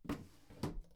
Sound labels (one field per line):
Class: drawer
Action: closing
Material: wooden